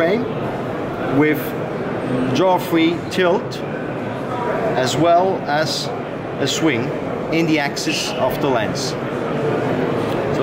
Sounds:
speech

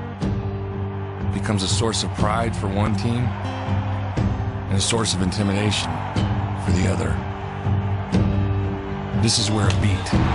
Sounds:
music, speech

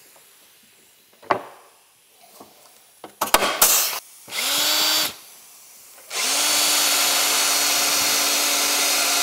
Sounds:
inside a small room, drill

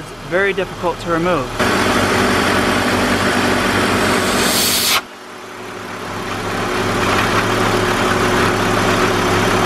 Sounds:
engine, speech, vibration

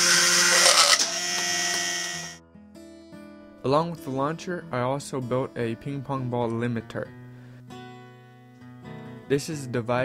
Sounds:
music, speech

